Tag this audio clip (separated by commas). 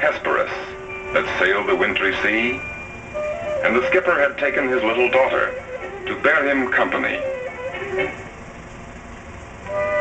Music, Speech